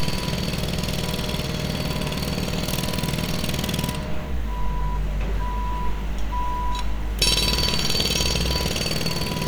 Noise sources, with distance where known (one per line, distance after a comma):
jackhammer, near
reverse beeper, near